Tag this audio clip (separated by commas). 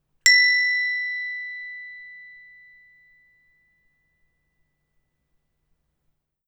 Bell